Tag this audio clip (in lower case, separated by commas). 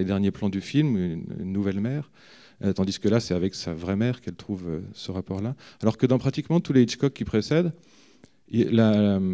speech